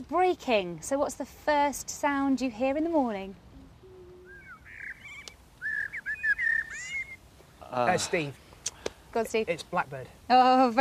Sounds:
speech, outside, rural or natural

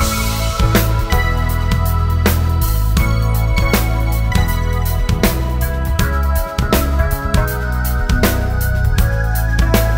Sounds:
music

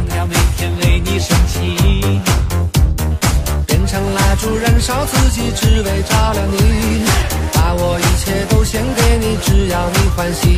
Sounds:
music

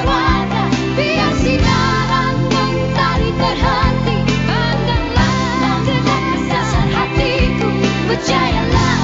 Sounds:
music, pop music

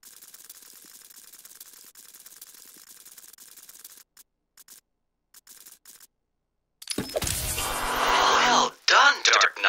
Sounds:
ratchet, mechanisms, gears

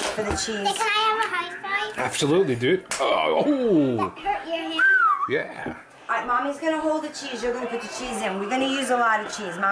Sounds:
speech, inside a small room

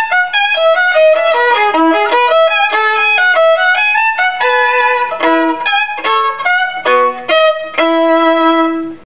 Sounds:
musical instrument, music, violin

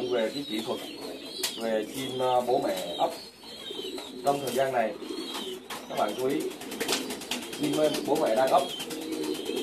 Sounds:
bird, speech, dove, inside a small room

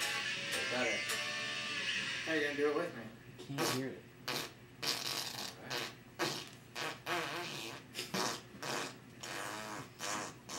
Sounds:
music, speech, fart, guitar, people farting

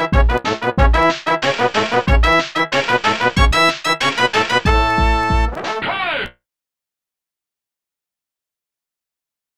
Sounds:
music, soundtrack music, video game music

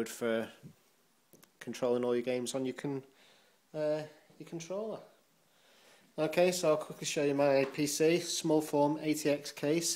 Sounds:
speech

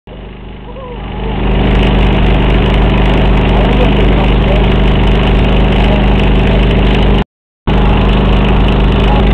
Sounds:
speech, vehicle

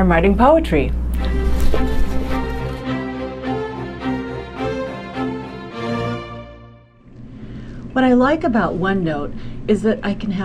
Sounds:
speech, music

